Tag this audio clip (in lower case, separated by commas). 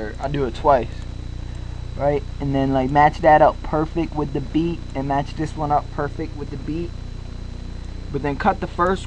speech